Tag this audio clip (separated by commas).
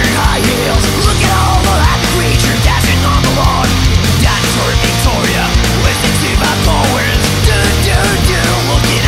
Music